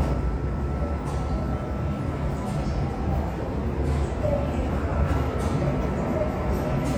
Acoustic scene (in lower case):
subway station